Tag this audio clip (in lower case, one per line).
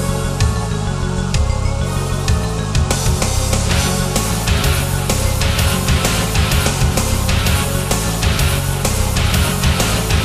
music